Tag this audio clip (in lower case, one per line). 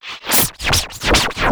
music
musical instrument
scratching (performance technique)